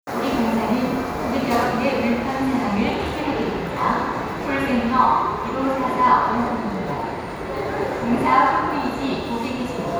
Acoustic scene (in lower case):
subway station